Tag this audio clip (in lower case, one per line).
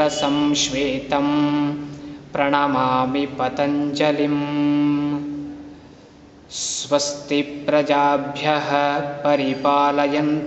mantra